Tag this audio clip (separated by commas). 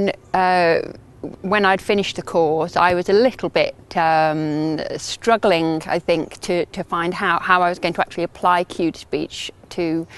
Speech, woman speaking